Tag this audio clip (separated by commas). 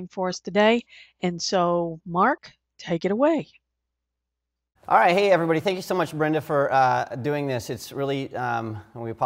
Speech